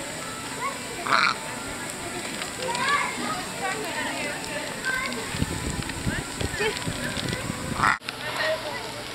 A duck quacking and children and adults talking